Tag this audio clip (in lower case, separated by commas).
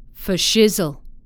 human voice, female speech, speech